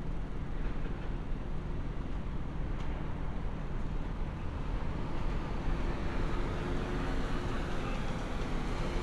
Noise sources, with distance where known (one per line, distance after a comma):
medium-sounding engine, near